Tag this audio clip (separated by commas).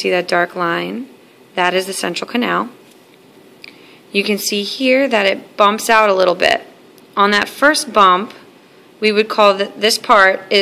Speech